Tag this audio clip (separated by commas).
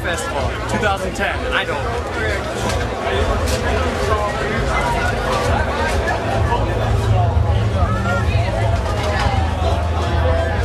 Speech